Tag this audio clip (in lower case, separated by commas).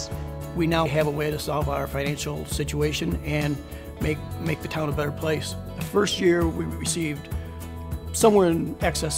speech, music